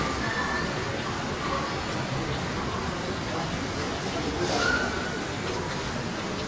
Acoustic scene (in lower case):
subway station